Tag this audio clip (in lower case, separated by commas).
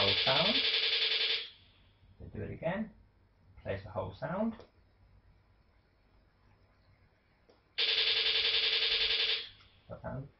speech